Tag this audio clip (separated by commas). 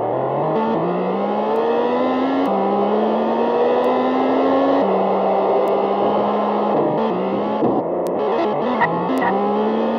Car, Vehicle